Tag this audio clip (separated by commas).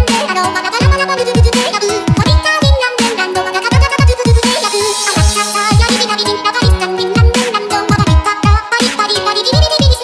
Dubstep, Electronic music, Music